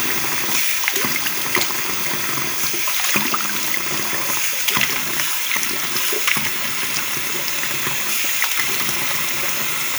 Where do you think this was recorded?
in a restroom